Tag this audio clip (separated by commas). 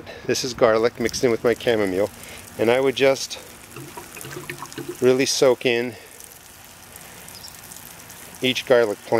Speech, Pour